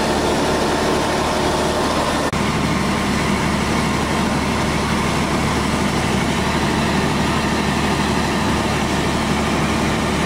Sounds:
fire

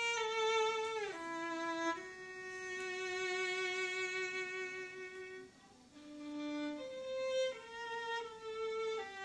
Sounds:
music
fiddle
musical instrument

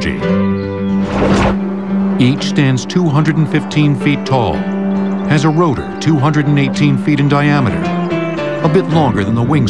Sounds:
music
speech

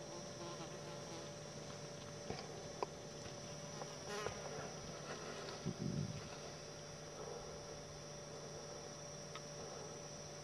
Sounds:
insect
bee or wasp
fly

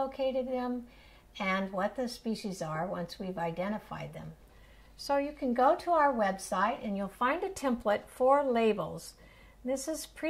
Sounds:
speech

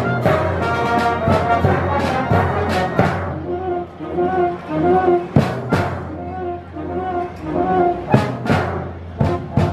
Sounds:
bass drum
snare drum
rimshot
drum
percussion

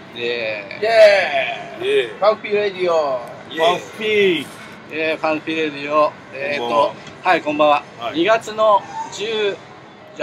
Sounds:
speech

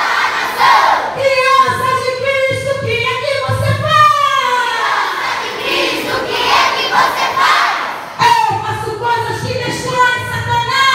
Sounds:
children shouting

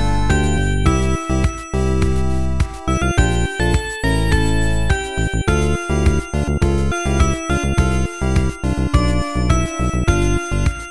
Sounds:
theme music
soundtrack music
music

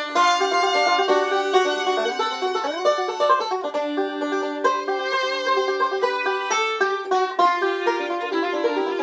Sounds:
fiddle
pizzicato
bowed string instrument

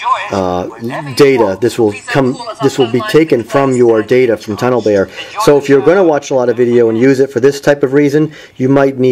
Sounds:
speech

